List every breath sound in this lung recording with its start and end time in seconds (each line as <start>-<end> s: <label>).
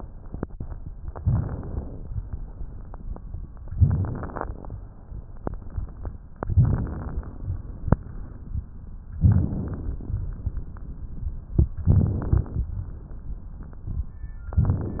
0.99-2.09 s: inhalation
0.99-2.09 s: crackles
6.54-7.47 s: inhalation
6.54-7.47 s: crackles
6.55-7.43 s: inhalation
9.23-10.16 s: crackles
11.88-12.70 s: inhalation
11.88-12.70 s: crackles